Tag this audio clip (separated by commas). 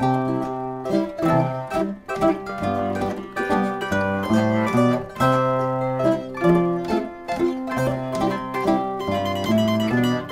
Pizzicato, Zither